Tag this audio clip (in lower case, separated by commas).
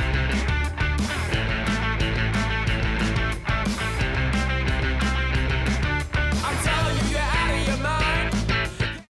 music, pop music